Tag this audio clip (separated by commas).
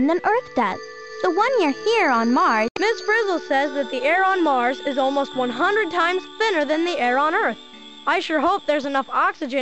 Speech, Music